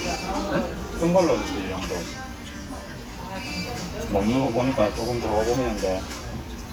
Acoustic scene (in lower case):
restaurant